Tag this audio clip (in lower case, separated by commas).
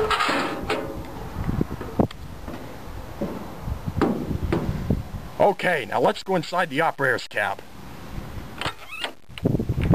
speech, vehicle